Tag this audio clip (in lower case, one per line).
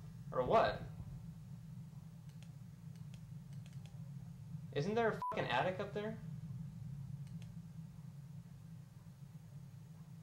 speech